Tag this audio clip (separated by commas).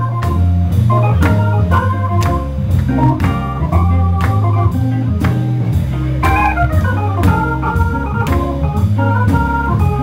Music, Speech